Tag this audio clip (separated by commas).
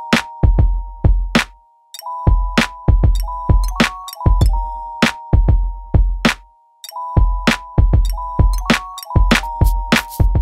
Music